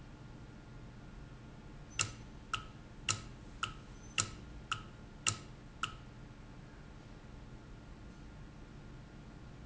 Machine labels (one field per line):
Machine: valve